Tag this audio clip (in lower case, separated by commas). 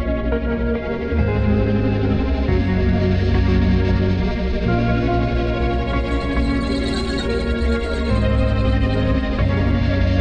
music